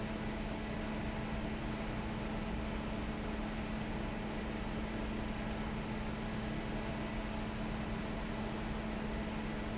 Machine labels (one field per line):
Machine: fan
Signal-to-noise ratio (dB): -6 dB